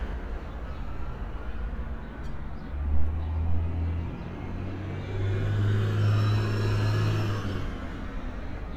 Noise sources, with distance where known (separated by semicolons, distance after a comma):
large-sounding engine, near